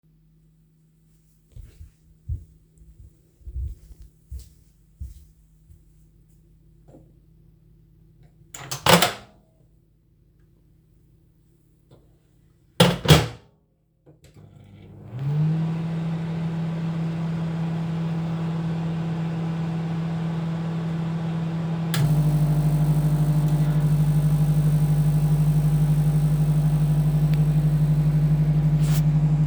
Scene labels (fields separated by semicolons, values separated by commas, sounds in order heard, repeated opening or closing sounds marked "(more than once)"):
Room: kitchen; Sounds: footsteps, microwave